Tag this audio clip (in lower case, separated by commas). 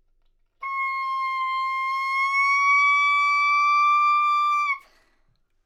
woodwind instrument, music, musical instrument